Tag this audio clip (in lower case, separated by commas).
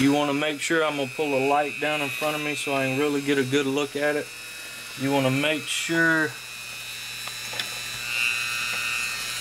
speech